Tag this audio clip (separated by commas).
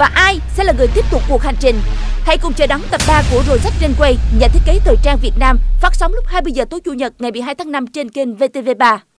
Music, Speech